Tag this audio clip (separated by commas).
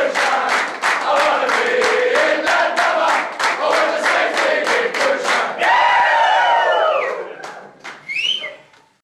Male singing, Choir